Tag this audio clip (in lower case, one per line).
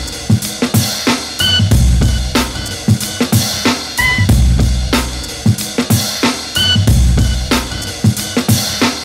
music